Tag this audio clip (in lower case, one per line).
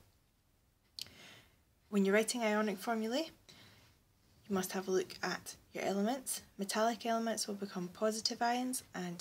speech